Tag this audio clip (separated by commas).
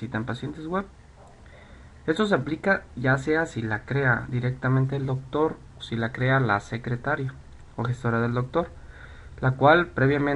Speech